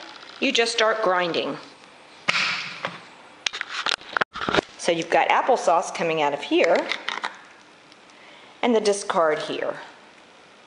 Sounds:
Speech

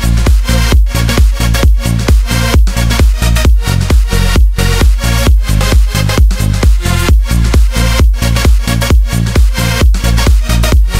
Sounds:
Music

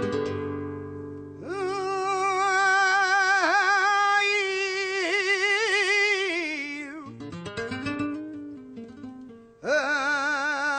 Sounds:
Strum, Music, Guitar, Plucked string instrument, Musical instrument

